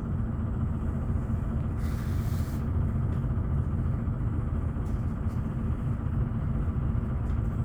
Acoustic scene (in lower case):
bus